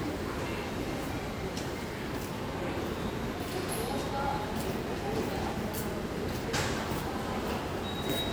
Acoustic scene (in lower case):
crowded indoor space